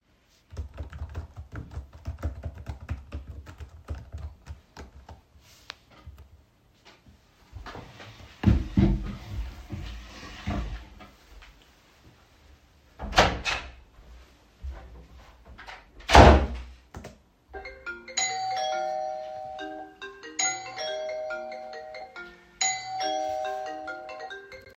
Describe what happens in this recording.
I was working on my laptop, when I decided to take a break, I got up and got out of the room. At that same time I got a call and the doorbell started ringing simultaneously.